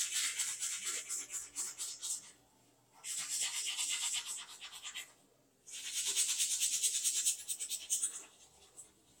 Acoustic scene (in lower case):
restroom